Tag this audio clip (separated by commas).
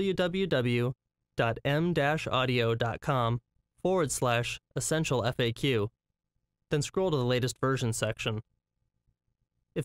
Speech